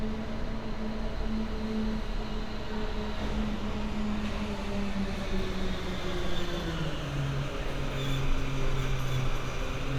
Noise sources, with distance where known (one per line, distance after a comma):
large-sounding engine, near